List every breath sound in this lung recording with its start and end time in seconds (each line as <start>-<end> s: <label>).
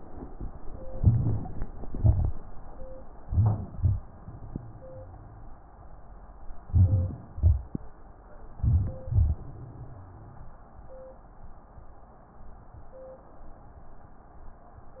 0.92-1.78 s: crackles
0.95-1.81 s: inhalation
1.79-2.38 s: exhalation
1.79-2.42 s: crackles
3.16-3.75 s: inhalation
3.74-5.46 s: exhalation
3.74-5.46 s: crackles
3.76-4.24 s: exhalation
6.69-7.34 s: inhalation
6.69-7.34 s: crackles
7.35-7.94 s: crackles
7.37-7.92 s: exhalation
8.55-9.01 s: inhalation
9.04-10.14 s: crackles